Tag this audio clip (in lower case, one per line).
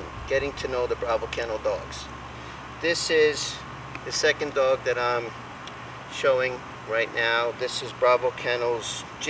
speech